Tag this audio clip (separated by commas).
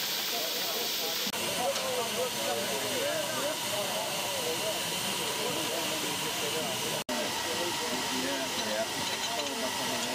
Speech